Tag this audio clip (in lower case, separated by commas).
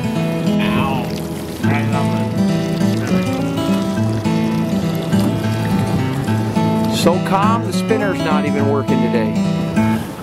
speech, music